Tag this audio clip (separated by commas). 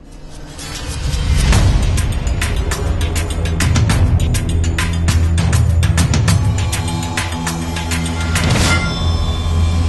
Music